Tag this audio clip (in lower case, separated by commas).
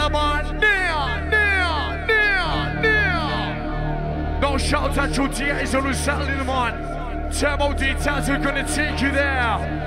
music, speech